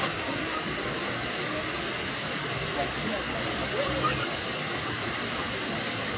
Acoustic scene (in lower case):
park